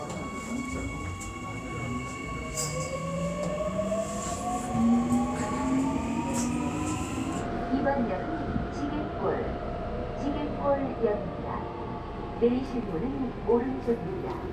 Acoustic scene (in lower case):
subway train